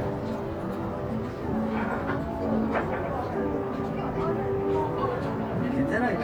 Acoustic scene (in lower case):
crowded indoor space